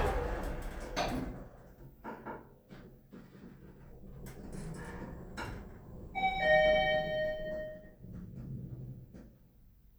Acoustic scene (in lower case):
elevator